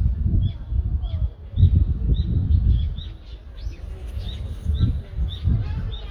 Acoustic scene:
residential area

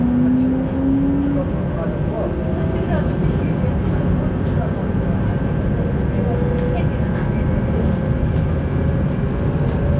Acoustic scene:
subway train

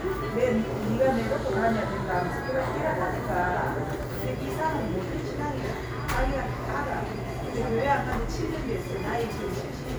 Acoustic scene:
cafe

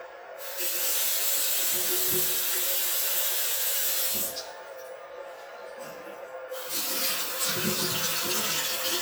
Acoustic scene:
restroom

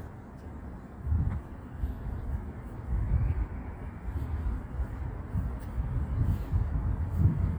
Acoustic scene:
residential area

